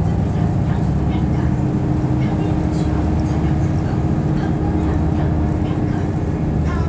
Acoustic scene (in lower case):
bus